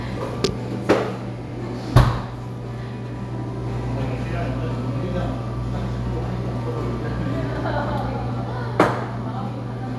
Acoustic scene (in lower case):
cafe